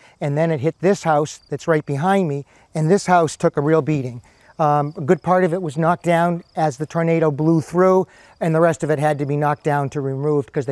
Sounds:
Speech

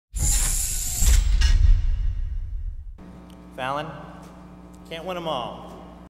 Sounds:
Male speech, Music, monologue, Speech

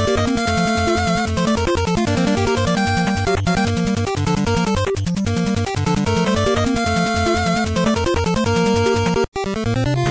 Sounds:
Music

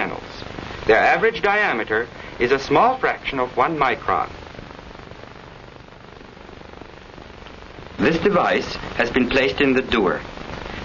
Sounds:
Speech

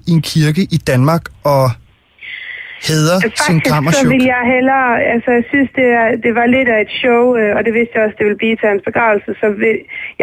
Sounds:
Radio, Speech

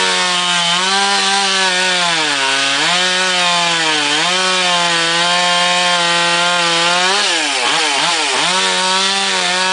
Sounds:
Chainsaw, Power tool

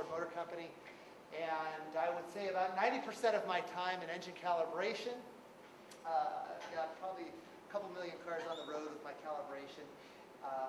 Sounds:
Speech

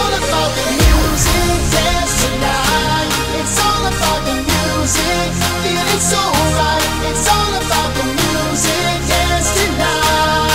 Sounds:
Music

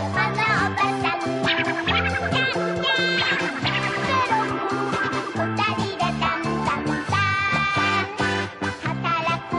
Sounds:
Music

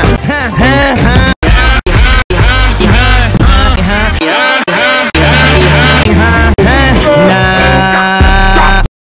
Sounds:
Music

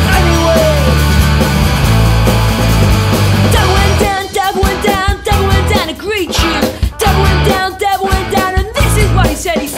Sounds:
Music

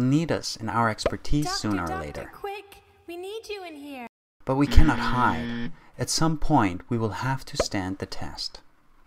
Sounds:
Speech

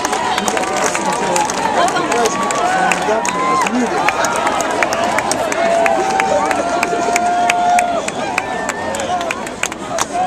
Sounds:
Cheering, Speech

